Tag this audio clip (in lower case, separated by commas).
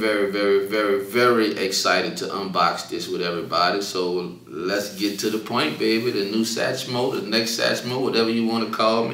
speech